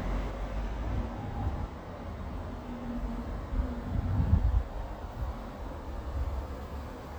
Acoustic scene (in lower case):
residential area